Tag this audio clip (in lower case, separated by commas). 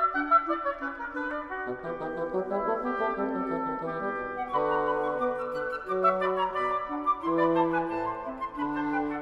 playing oboe